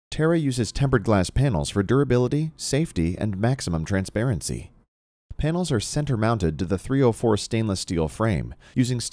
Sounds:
speech

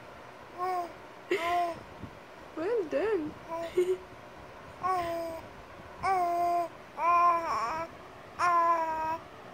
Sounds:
people babbling

